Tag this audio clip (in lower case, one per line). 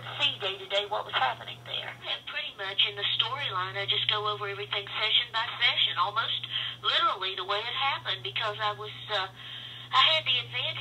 speech